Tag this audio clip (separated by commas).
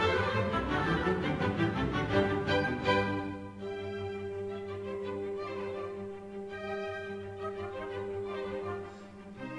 Cello, Music, Musical instrument